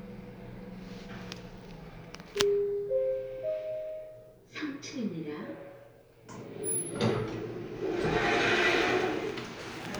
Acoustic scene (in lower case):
elevator